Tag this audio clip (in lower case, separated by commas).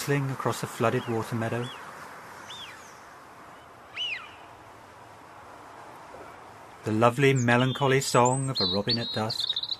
speech